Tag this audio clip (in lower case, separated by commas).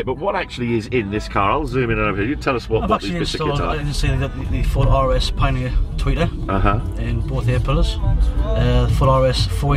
speech, music